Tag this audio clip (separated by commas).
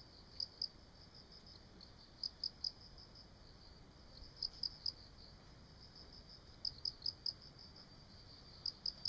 cricket chirping